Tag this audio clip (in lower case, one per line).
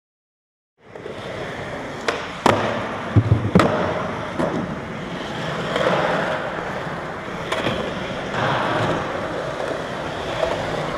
skateboard
skateboarding